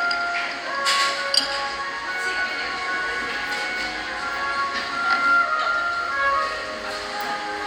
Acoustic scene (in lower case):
cafe